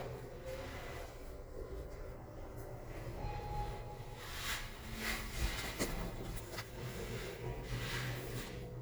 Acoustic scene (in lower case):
elevator